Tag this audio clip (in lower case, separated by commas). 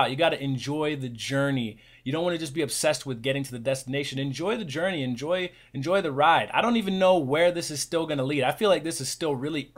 speech